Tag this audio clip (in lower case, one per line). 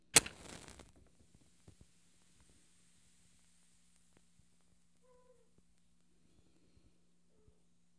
fire